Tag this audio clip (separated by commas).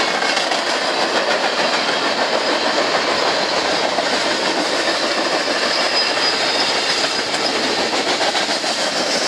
train horning